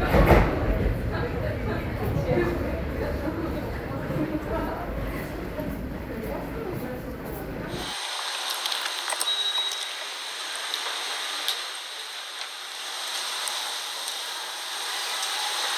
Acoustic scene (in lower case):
subway station